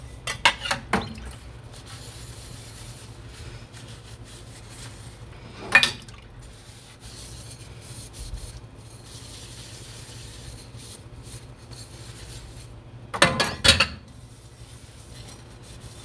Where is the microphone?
in a kitchen